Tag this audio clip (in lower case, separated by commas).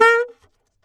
musical instrument, wind instrument, music